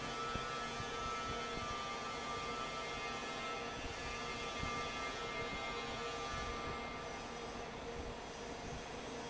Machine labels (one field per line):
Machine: fan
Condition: normal